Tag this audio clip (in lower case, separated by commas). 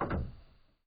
mechanisms